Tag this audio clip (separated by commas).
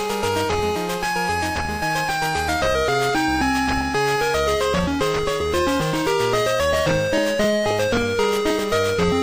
Music